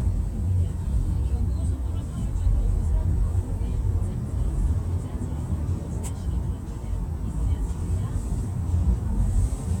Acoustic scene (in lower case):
car